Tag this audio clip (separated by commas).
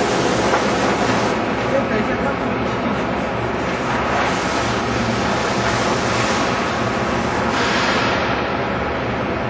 Speech